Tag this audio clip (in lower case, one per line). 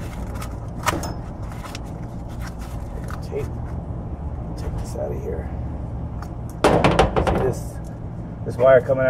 speech